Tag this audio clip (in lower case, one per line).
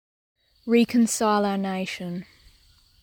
human voice
speech